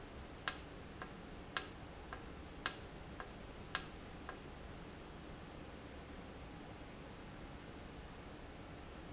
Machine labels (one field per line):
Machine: valve